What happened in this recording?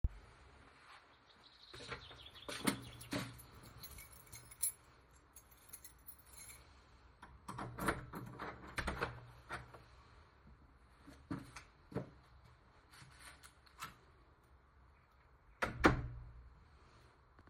On my way to the front door I got out my key from my coat and unlocked the door to go inside.